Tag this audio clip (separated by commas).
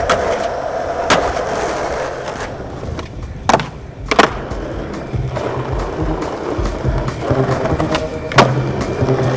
skateboarding